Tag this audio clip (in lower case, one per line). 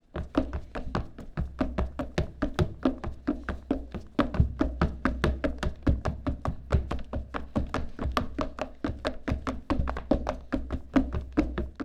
run